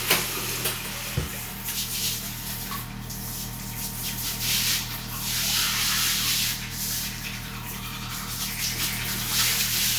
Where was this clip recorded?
in a restroom